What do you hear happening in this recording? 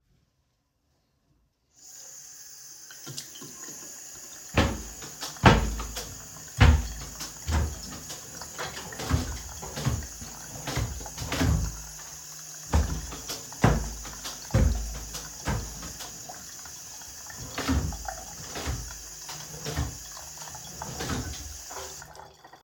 The phone is static on a bathroom counter. I turn on a nearby tap so the water is running in the background. While the water runs, I open and close the wardrobe doors several times.